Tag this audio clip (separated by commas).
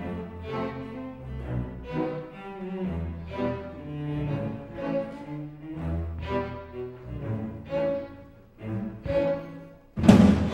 Violin, Music, Orchestra, Musical instrument